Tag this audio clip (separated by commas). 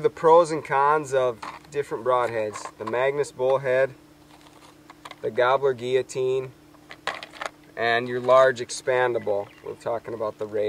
Speech, Bird, Animal